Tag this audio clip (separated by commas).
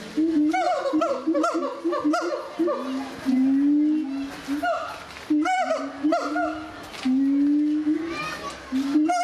gibbon howling